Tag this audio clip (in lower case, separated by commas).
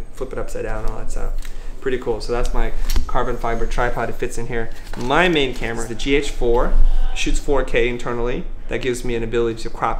speech